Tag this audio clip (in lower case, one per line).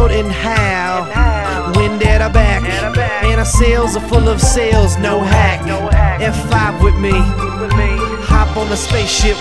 music